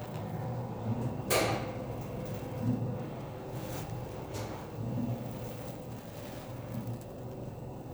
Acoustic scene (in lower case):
elevator